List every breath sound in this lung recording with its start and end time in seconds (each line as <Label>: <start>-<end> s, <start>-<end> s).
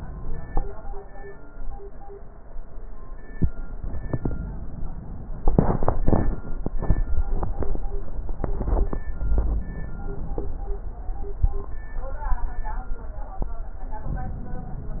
Inhalation: 3.84-5.34 s, 9.12-10.62 s
Rhonchi: 9.25-9.68 s